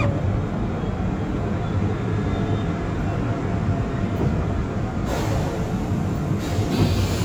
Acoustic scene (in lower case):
subway train